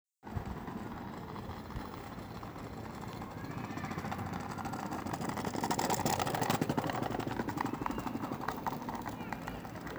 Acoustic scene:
park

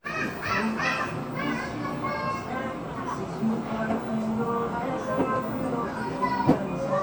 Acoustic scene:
cafe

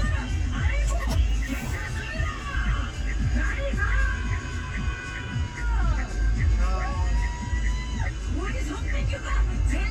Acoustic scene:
car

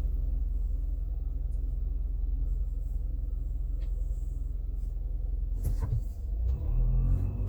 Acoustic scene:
car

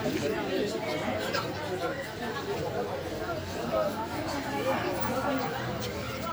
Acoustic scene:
park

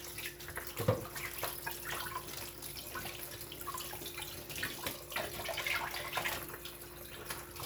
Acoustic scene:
kitchen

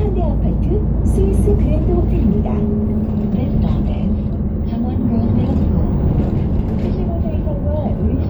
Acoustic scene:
bus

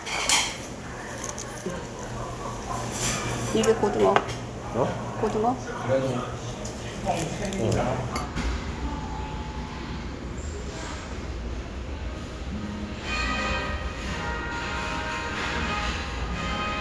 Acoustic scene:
restaurant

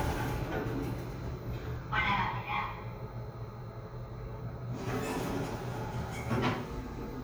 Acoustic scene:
elevator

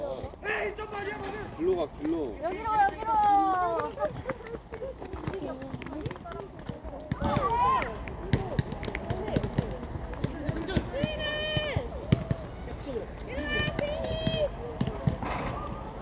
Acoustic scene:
park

